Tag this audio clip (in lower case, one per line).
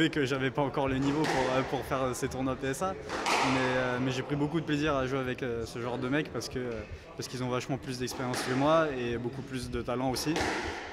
playing squash